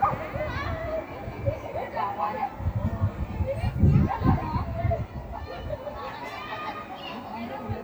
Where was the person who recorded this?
in a residential area